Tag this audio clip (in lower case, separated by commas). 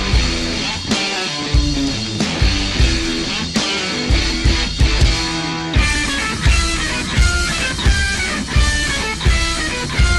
punk rock, music